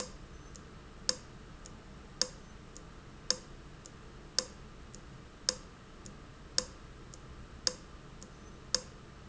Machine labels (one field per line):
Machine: valve